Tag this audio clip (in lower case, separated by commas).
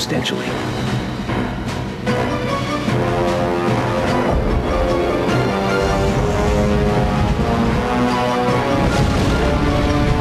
theme music